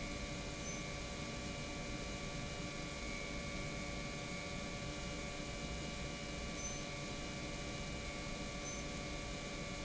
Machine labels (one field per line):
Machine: pump